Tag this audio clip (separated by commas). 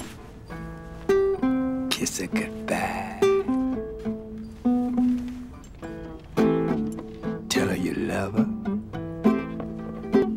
Strum, Guitar, Music, Acoustic guitar, Plucked string instrument, Speech, Musical instrument